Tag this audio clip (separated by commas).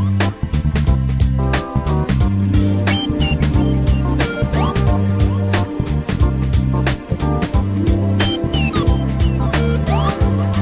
Music